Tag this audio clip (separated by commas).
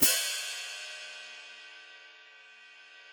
Musical instrument, Cymbal, Percussion, Music, Hi-hat